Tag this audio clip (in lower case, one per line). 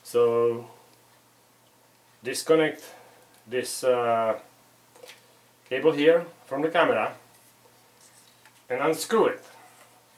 speech